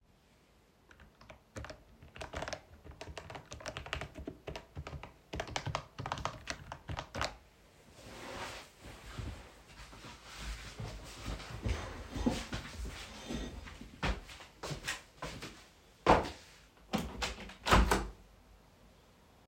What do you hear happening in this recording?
I was typing on the keyboard while sitting at my desk. After that, I stood up and moved the chair backwards. I walked to the window and opened it.